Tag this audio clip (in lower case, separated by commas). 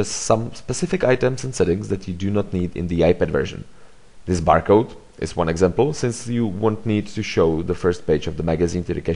speech